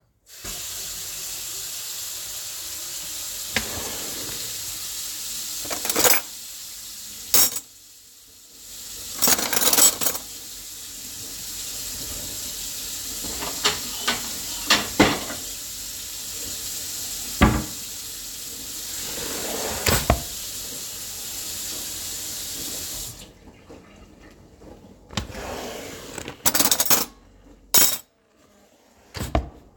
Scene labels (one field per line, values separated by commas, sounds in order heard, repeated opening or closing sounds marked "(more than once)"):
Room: kitchen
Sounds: running water, wardrobe or drawer (more than once), cutlery and dishes